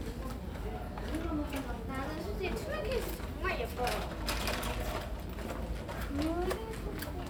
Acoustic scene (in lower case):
residential area